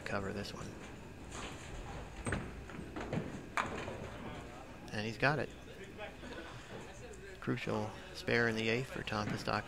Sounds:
inside a public space, speech

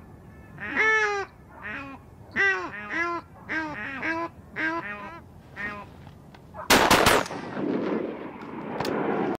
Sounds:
goose, gunfire, honk, fowl

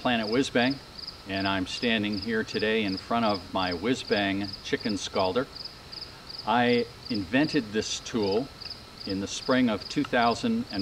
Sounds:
speech

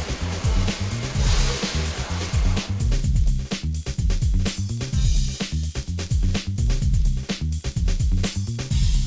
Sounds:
music

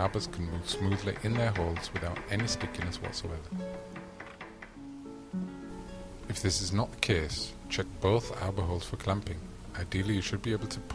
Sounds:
music, speech

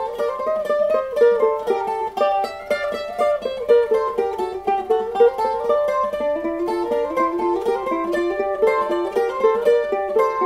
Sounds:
mandolin, music

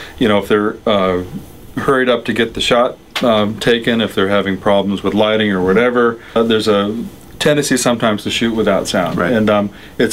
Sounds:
speech

